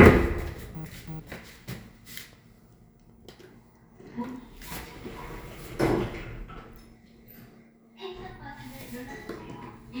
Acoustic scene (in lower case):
elevator